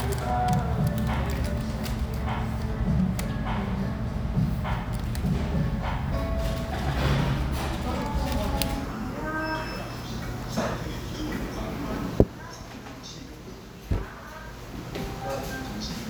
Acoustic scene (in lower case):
restaurant